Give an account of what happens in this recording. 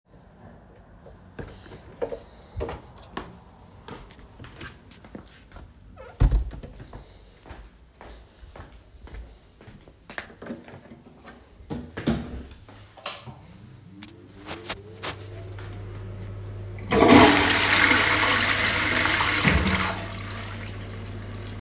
I opened the bedroom door and walked through the hallway to reach bedroom, then switched on the bathroom light and used the toilet after using I flushed the toilet.